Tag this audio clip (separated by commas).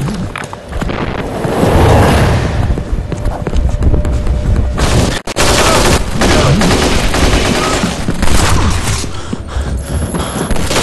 Speech, Music